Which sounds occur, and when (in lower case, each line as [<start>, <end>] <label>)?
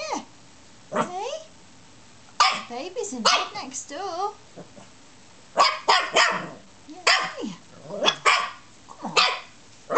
[0.00, 0.24] female speech
[0.00, 9.95] mechanisms
[0.92, 1.49] female speech
[0.93, 1.12] growling
[2.41, 2.68] bark
[2.70, 4.39] female speech
[3.25, 3.54] bark
[4.58, 4.85] growling
[5.57, 6.62] bark
[6.86, 6.97] tick
[6.88, 7.59] female speech
[7.07, 7.43] bark
[7.70, 8.03] growling
[8.03, 8.62] bark
[8.91, 9.29] female speech
[9.18, 9.53] bark
[9.60, 9.72] tick
[9.89, 9.95] bark